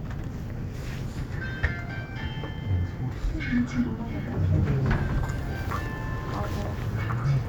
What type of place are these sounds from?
elevator